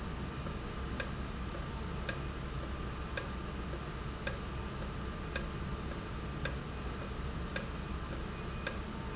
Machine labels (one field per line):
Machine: valve